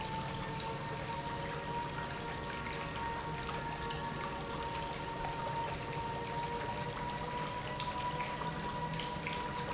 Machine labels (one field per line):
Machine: pump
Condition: normal